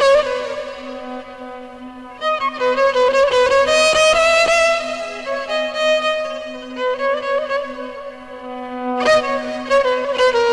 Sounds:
Musical instrument, Music, fiddle

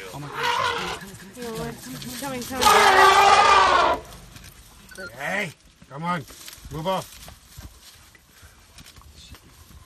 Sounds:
elephant trumpeting

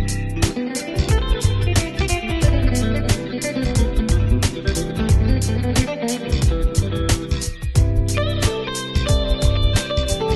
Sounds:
Music, Guitar, Musical instrument, Electric guitar, Plucked string instrument, Bass guitar

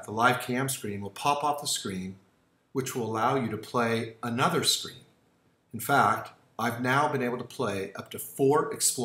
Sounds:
Speech

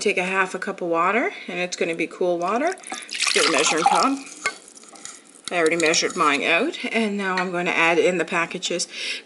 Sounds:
dribble

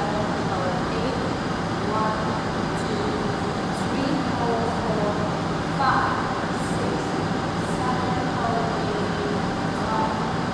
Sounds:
Speech

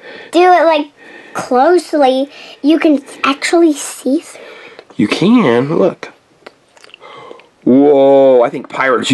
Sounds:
Speech

